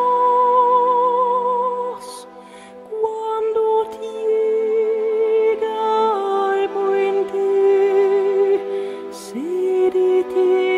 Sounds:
lullaby
music

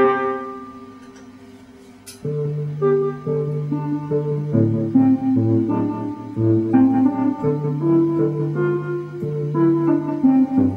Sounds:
musical instrument
keyboard (musical)
piano
music
electric piano
playing piano

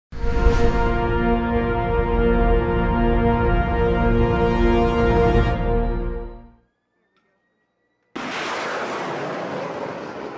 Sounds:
missile launch

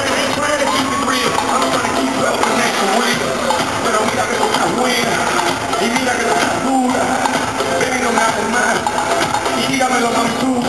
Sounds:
music

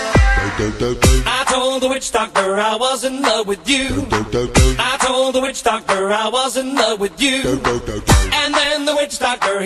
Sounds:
reggae

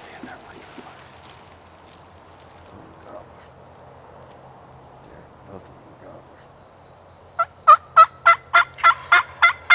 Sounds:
turkey
fowl
gobble

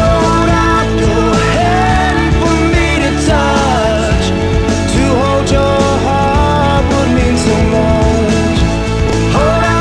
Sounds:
singing
pop music
independent music
music

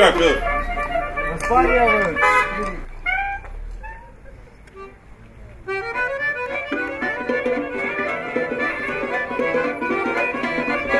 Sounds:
speech
outside, urban or man-made
music

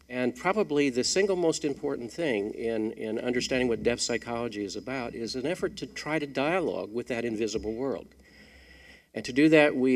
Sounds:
speech

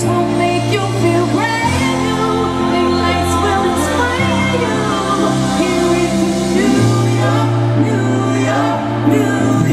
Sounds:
music

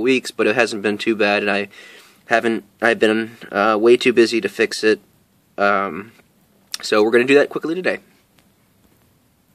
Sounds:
speech

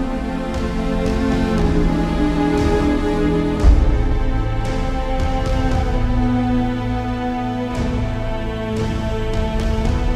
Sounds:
music

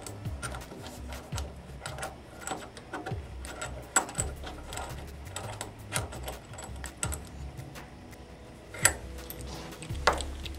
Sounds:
music
inside a small room

